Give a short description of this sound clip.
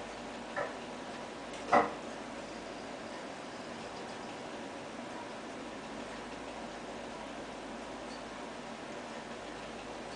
Low knocking with background noise